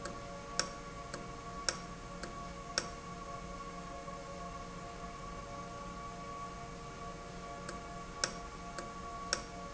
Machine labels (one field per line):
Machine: valve